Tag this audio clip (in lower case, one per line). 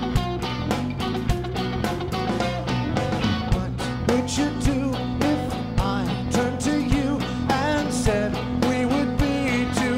music
ska
screaming